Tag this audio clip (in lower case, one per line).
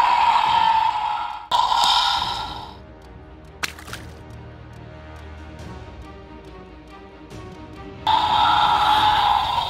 dinosaurs bellowing